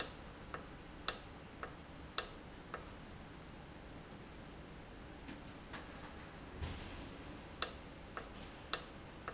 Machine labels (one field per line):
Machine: valve